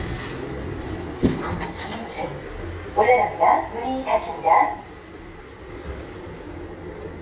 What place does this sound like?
elevator